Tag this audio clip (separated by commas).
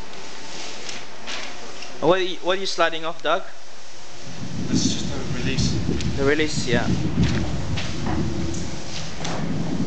inside a small room, Speech